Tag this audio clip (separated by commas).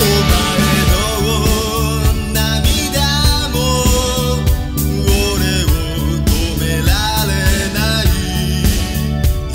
Music